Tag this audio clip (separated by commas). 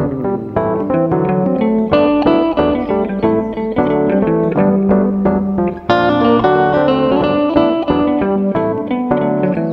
Guitar, Musical instrument, Music